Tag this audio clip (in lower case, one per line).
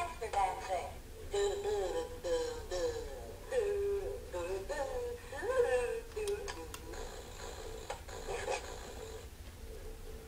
speech